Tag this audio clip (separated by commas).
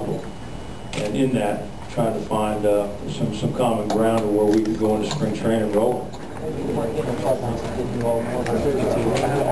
inside a large room or hall, Speech